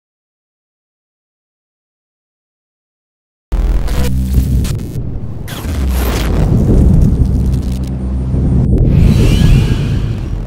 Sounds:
Music

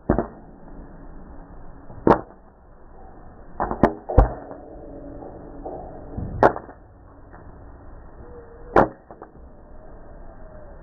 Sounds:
popping popcorn

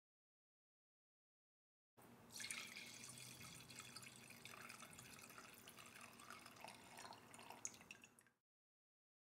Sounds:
Drip

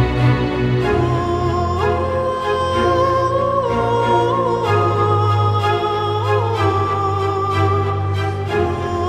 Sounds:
Music

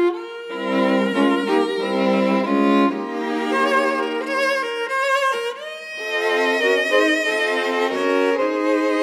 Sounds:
Cello, Bowed string instrument, Violin

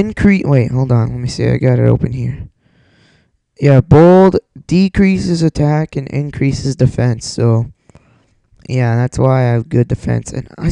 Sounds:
Speech

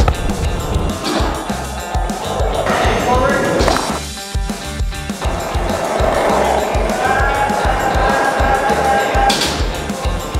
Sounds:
skateboarding

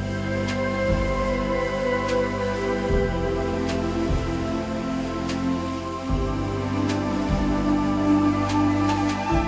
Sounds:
Music

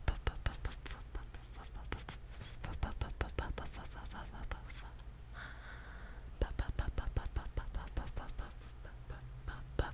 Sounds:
Whispering

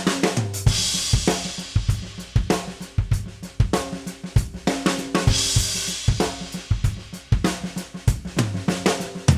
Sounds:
playing bass drum

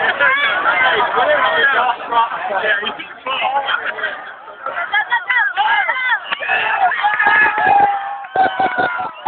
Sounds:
Speech, Run

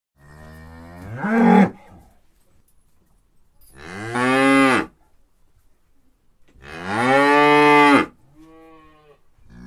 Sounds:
cattle

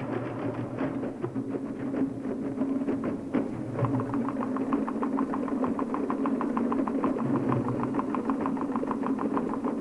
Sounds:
Musical instrument, Music, Drum, Percussion

